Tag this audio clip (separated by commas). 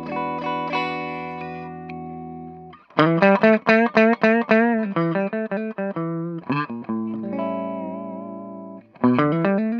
Plucked string instrument, Strum, Guitar, Country, Musical instrument, Music, Bass guitar